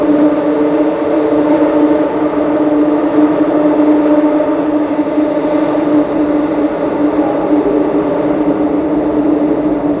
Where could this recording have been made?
on a subway train